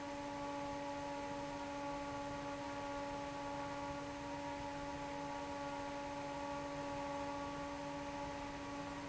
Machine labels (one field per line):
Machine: fan